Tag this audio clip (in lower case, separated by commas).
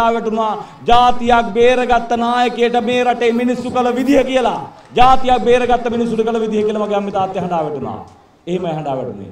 monologue, speech, man speaking